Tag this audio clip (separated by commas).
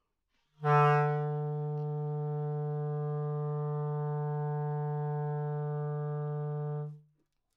woodwind instrument, Musical instrument, Music